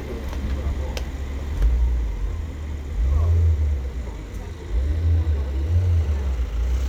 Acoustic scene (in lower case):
residential area